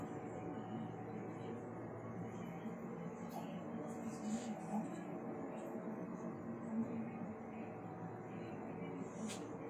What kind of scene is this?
bus